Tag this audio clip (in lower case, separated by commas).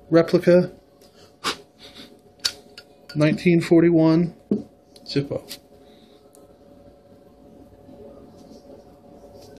inside a small room, speech